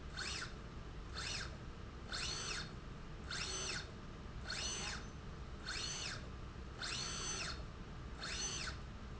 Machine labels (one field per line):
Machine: slide rail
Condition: normal